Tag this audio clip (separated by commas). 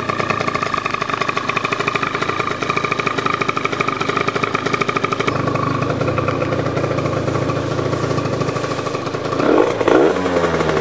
driving motorcycle, Motorcycle, outside, urban or man-made, Vehicle